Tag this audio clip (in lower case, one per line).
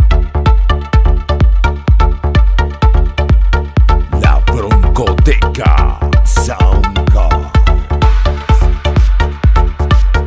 speech
music